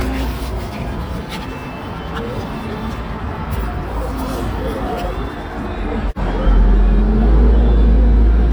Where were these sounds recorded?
on a bus